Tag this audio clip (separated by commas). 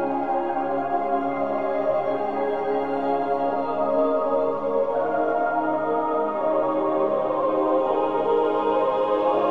Music